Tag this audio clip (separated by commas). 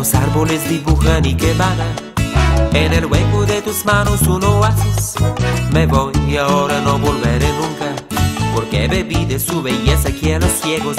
Music